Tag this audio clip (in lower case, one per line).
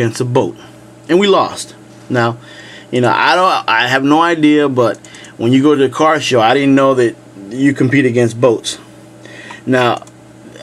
speech